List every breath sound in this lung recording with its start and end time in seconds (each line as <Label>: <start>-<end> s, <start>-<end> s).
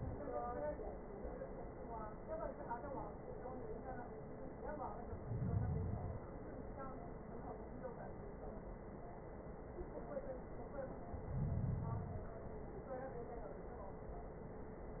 Inhalation: 4.98-6.24 s, 11.12-12.38 s